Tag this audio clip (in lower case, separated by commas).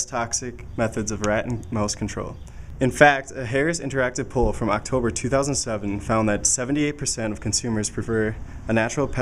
speech